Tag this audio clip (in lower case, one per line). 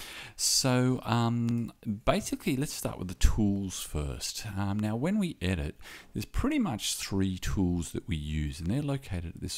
speech